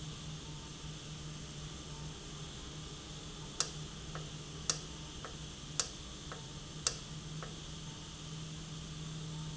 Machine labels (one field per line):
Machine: valve